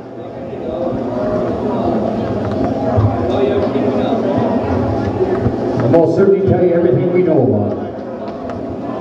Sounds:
speech

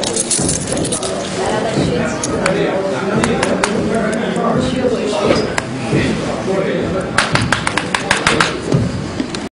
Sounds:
speech

